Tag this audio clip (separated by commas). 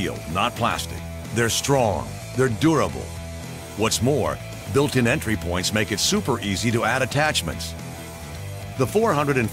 Music, Speech